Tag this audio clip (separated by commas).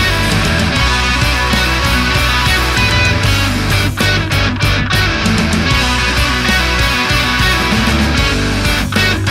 Progressive rock, Music